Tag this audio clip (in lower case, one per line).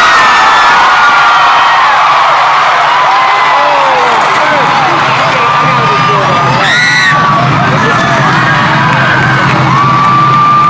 speech